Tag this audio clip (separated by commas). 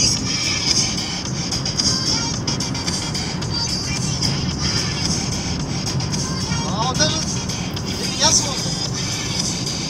driving snowmobile